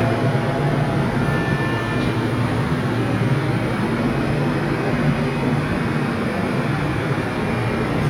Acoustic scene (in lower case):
subway station